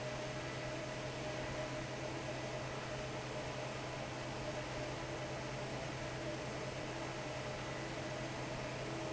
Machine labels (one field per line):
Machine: fan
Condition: normal